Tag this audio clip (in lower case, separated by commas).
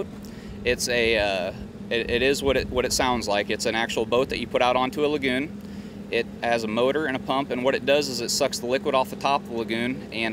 speech